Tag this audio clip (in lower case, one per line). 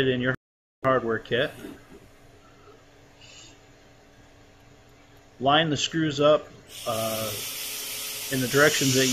speech
tools
wood